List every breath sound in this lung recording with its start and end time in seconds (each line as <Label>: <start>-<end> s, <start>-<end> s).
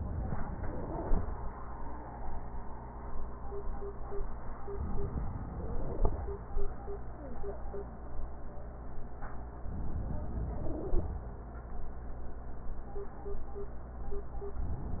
Inhalation: 4.72-6.22 s, 9.62-11.12 s